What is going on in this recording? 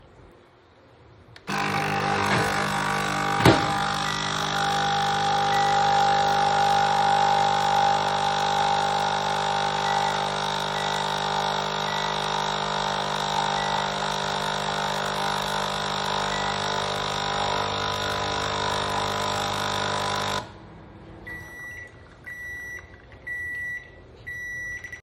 The dishwasher was running. I turned on the coffee machine, then I programmed the microwave and turned it on.